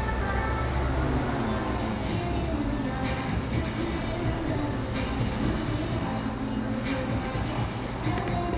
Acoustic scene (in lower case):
cafe